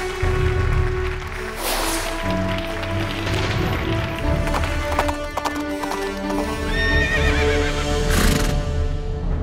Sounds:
animal, neigh, horse neighing, music, horse, clip-clop

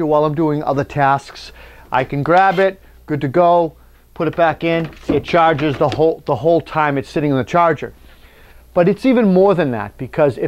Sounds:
speech

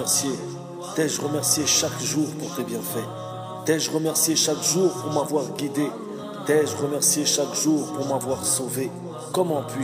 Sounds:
speech, music

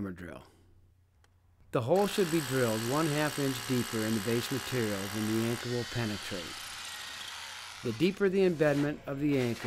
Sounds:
power tool, vacuum cleaner, tools, drill

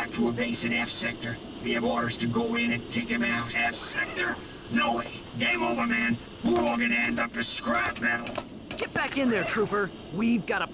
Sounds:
speech

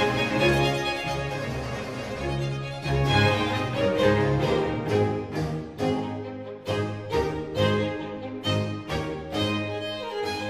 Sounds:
violin, music, musical instrument

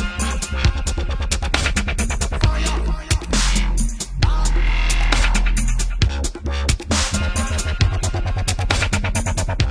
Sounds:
dubstep, music

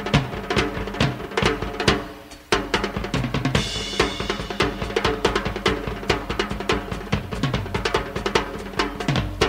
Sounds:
cymbal

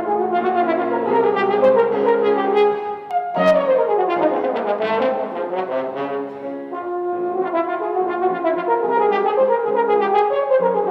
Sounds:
brass instrument

